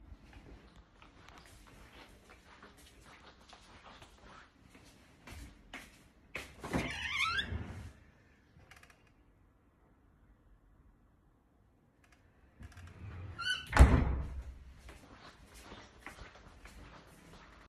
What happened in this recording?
I went into the living room and opened the door. I then closed the door behind me and moved further into the room